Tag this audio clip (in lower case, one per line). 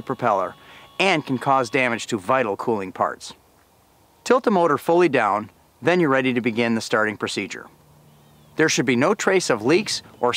speech